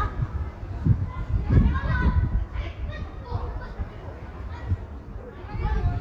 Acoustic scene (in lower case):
residential area